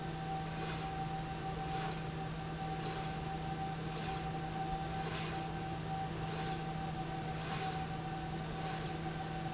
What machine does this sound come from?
slide rail